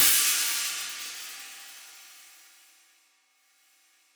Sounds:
percussion, music, cymbal, musical instrument, hi-hat

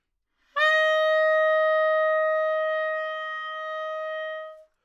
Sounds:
musical instrument, wind instrument, music

